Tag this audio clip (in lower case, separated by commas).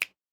hands, finger snapping